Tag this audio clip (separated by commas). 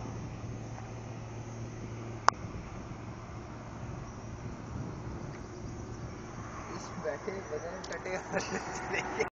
Speech, Vehicle